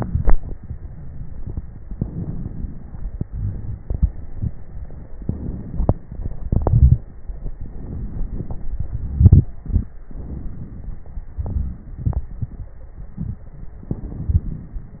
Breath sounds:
0.09-1.83 s: exhalation
0.09-1.83 s: crackles
1.82-3.26 s: inhalation
1.84-3.25 s: crackles
3.27-5.14 s: exhalation
3.27-5.14 s: crackles
5.15-6.40 s: inhalation
5.15-6.40 s: crackles
6.40-7.57 s: exhalation
6.60-7.07 s: wheeze
7.57-8.75 s: crackles
7.57-8.79 s: inhalation
8.76-10.04 s: exhalation
8.76-10.04 s: crackles
10.07-11.34 s: inhalation
10.07-11.34 s: crackles
11.35-13.79 s: exhalation
12.66-13.19 s: stridor
13.80-15.00 s: inhalation
13.80-15.00 s: crackles

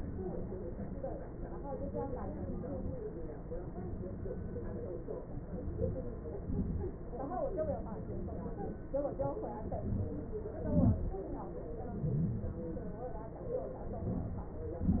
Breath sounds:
5.67-6.26 s: inhalation
6.46-6.94 s: exhalation
9.72-10.27 s: inhalation
10.65-11.09 s: exhalation
14.04-14.67 s: inhalation
14.73-15.00 s: exhalation

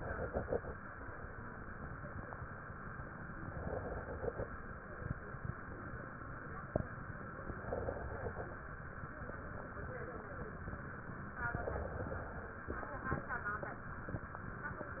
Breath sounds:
0.00-0.69 s: inhalation
3.39-4.45 s: inhalation
7.51-8.57 s: inhalation
11.58-12.63 s: inhalation

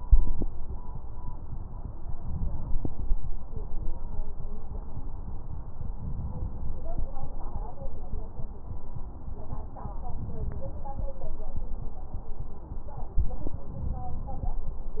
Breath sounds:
2.16-3.15 s: inhalation
5.86-6.85 s: inhalation
10.13-11.12 s: inhalation
13.69-14.58 s: inhalation

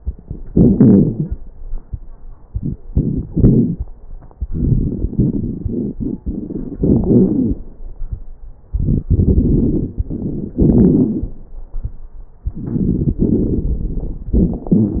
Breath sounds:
0.47-0.79 s: inhalation
0.47-0.79 s: crackles
0.78-1.35 s: exhalation
0.80-1.35 s: crackles
2.48-3.26 s: inhalation
2.48-3.26 s: crackles
3.31-3.81 s: exhalation
3.31-3.81 s: crackles
4.37-5.12 s: inhalation
4.37-5.12 s: crackles
5.16-6.77 s: exhalation
5.16-6.77 s: crackles
6.80-7.05 s: inhalation
6.80-7.05 s: crackles
7.08-7.61 s: exhalation
7.08-7.61 s: crackles
8.68-9.04 s: inhalation
8.68-9.04 s: crackles
9.08-9.98 s: exhalation
9.08-9.98 s: crackles
10.00-10.57 s: inhalation
10.00-10.57 s: crackles
10.59-11.36 s: exhalation
12.48-13.21 s: inhalation
12.48-13.21 s: crackles
13.24-14.32 s: exhalation
13.24-14.32 s: crackles
14.34-14.66 s: inhalation
14.34-14.66 s: crackles
14.68-15.00 s: exhalation
14.68-15.00 s: crackles

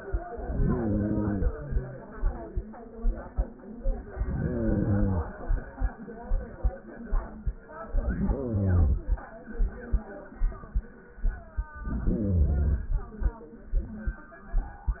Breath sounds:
0.30-1.80 s: inhalation
4.11-5.61 s: inhalation
7.74-9.24 s: inhalation
11.65-13.15 s: inhalation

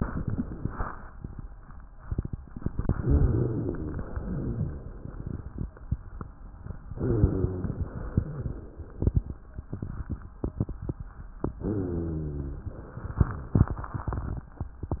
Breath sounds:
2.98-4.03 s: inhalation
2.98-4.03 s: rhonchi
4.03-5.04 s: exhalation
4.07-5.08 s: rhonchi
6.90-7.90 s: inhalation
6.90-7.90 s: rhonchi
7.94-8.95 s: exhalation
7.94-8.95 s: rhonchi
11.59-12.60 s: inhalation
11.59-12.60 s: rhonchi
12.66-13.67 s: exhalation

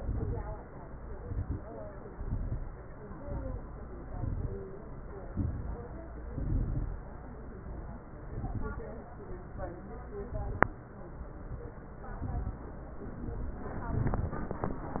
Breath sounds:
0.00-0.64 s: exhalation
0.00-0.64 s: crackles
1.12-1.63 s: inhalation
1.12-1.63 s: crackles
2.05-2.81 s: exhalation
2.05-2.81 s: crackles
3.13-3.67 s: inhalation
3.13-3.67 s: crackles
4.08-4.62 s: exhalation
4.08-4.62 s: crackles
5.32-5.98 s: inhalation
5.32-5.98 s: crackles
6.31-7.16 s: exhalation
6.31-7.16 s: crackles
8.25-9.02 s: inhalation
8.25-9.02 s: crackles
10.28-10.94 s: exhalation
10.28-10.94 s: crackles
12.09-12.75 s: inhalation
12.09-12.75 s: crackles
13.19-13.85 s: exhalation
13.19-13.85 s: crackles
13.91-14.57 s: inhalation
13.91-14.57 s: crackles

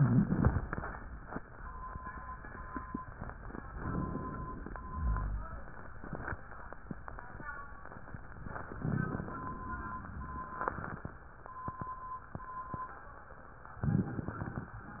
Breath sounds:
3.79-4.74 s: inhalation
4.74-5.56 s: exhalation
4.88-5.59 s: rhonchi
8.78-9.29 s: crackles
8.79-9.68 s: inhalation
9.68-10.50 s: exhalation
13.79-14.63 s: crackles
13.85-14.68 s: inhalation
14.68-15.00 s: exhalation
14.97-15.00 s: rhonchi

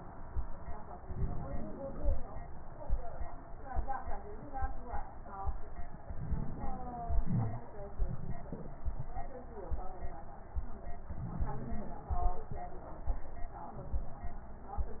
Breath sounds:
1.04-2.33 s: inhalation
1.04-2.33 s: wheeze
6.08-7.22 s: inhalation
6.08-7.22 s: wheeze
7.22-7.68 s: exhalation
7.22-7.68 s: crackles
11.13-12.10 s: inhalation
11.13-12.10 s: wheeze
12.10-12.60 s: exhalation
12.10-12.60 s: crackles

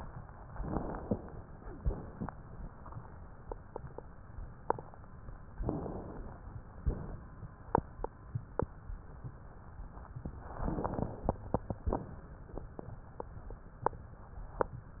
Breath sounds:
0.53-1.39 s: inhalation
5.67-6.53 s: inhalation
10.62-11.48 s: inhalation

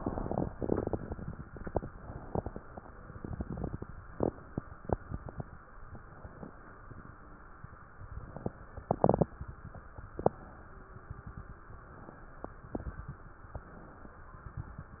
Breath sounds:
5.85-6.66 s: inhalation
11.71-12.53 s: inhalation
13.48-14.30 s: inhalation

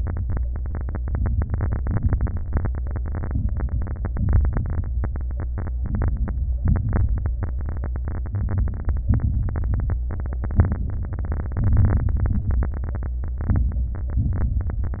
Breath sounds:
3.30-3.80 s: inhalation
3.30-3.80 s: crackles
4.12-4.62 s: exhalation
4.12-4.62 s: crackles
5.82-6.57 s: inhalation
5.82-6.57 s: crackles
6.58-7.33 s: exhalation
6.58-7.33 s: crackles
8.38-9.06 s: inhalation
8.38-9.06 s: crackles
9.09-9.78 s: exhalation
9.09-9.78 s: crackles
11.60-12.15 s: inhalation
11.60-12.15 s: crackles
12.15-12.70 s: exhalation
12.15-12.70 s: crackles

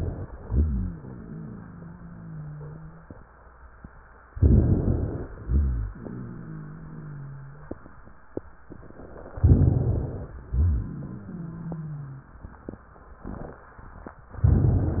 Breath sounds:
0.40-3.08 s: wheeze
4.31-5.28 s: inhalation
4.31-5.28 s: rhonchi
5.45-8.12 s: wheeze
9.39-10.36 s: inhalation
9.39-10.36 s: rhonchi
10.53-12.33 s: wheeze

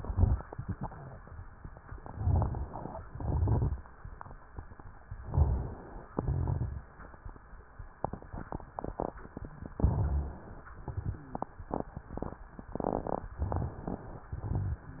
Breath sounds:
0.00-0.65 s: exhalation
0.00-0.65 s: crackles
1.99-2.83 s: inhalation
1.99-2.83 s: crackles
3.02-3.85 s: exhalation
3.02-3.85 s: crackles
5.16-6.00 s: inhalation
5.16-6.00 s: crackles
6.09-6.93 s: exhalation
6.09-6.93 s: crackles
9.77-10.66 s: inhalation
9.77-10.66 s: crackles
10.74-11.46 s: exhalation
10.74-11.46 s: crackles

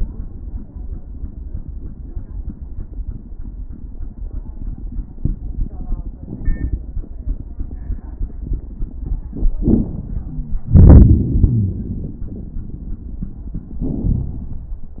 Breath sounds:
9.27-10.56 s: inhalation
10.26-10.61 s: wheeze
10.68-12.21 s: exhalation
10.68-12.21 s: crackles

